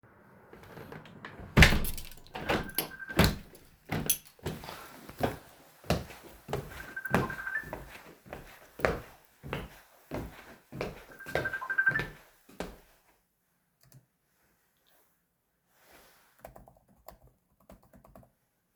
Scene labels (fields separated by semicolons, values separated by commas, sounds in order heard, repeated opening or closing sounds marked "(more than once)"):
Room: office; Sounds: window, footsteps, phone ringing, keyboard typing